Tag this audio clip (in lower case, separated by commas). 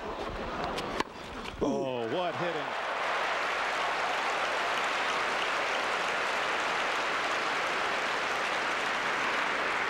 speech